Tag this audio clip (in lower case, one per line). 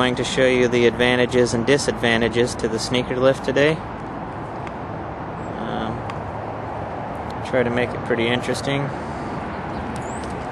speech